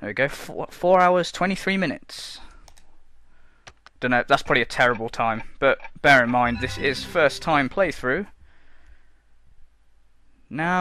A person talking and a clock ticking